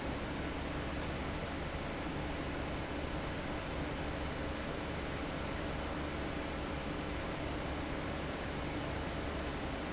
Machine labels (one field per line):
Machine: fan